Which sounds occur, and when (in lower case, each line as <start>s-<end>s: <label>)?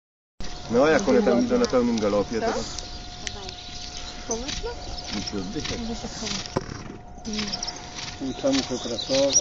0.4s-6.1s: chirp
0.4s-9.4s: mechanisms
0.7s-9.4s: conversation
0.7s-2.7s: man speaking
0.9s-1.0s: tick
1.0s-2.0s: woman speaking
1.6s-1.7s: tick
1.9s-2.1s: tick
2.3s-2.7s: woman speaking
2.7s-2.8s: tick
3.2s-3.3s: tick
3.2s-3.5s: woman speaking
3.4s-3.6s: tick
4.3s-4.8s: woman speaking
4.4s-4.6s: clip-clop
5.0s-5.4s: clip-clop
5.1s-5.6s: man speaking
5.6s-5.8s: clip-clop
5.6s-6.4s: woman speaking
6.2s-6.4s: clip-clop
6.6s-6.9s: snort (horse)
7.2s-7.6s: woman speaking
7.2s-7.8s: chirp
7.3s-7.6s: clip-clop
7.9s-8.1s: clip-clop
8.2s-9.4s: man speaking
8.3s-9.4s: chirp
8.5s-8.7s: clip-clop
9.1s-9.3s: clip-clop